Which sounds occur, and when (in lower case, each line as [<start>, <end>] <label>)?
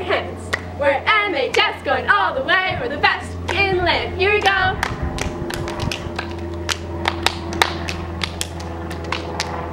[0.00, 0.27] female singing
[0.00, 9.72] helicopter
[0.44, 0.58] clapping
[0.77, 3.14] female singing
[1.46, 1.61] clapping
[3.43, 3.54] clapping
[3.45, 4.74] female singing
[4.38, 4.52] clapping
[4.75, 4.84] clapping
[5.10, 5.24] clapping
[5.45, 9.72] clapping